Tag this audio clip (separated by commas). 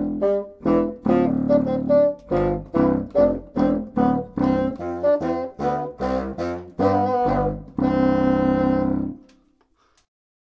playing bassoon